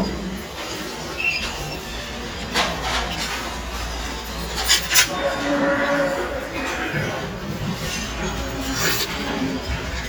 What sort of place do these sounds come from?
restaurant